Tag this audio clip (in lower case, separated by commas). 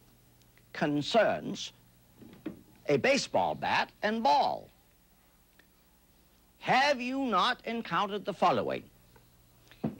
speech